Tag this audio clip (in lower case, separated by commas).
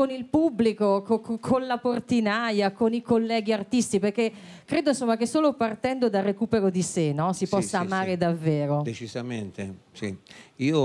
speech